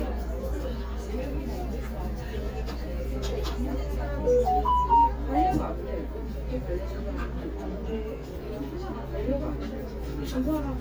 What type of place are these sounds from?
crowded indoor space